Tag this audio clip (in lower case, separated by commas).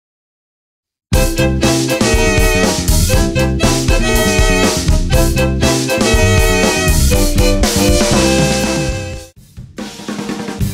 snare drum, drum, bass drum, rimshot, percussion, drum roll, drum kit